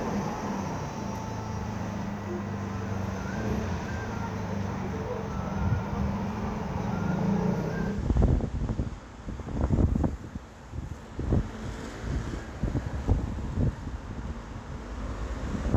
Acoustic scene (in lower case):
street